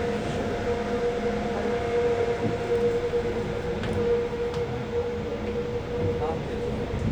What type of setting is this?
subway train